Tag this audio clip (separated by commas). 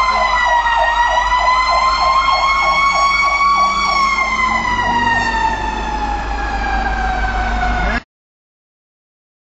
Medium engine (mid frequency), Vehicle, vroom, Truck